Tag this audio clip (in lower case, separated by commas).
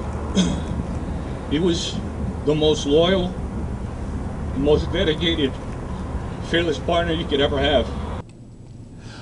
speech